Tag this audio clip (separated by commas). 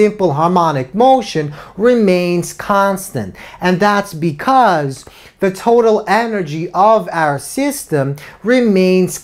Speech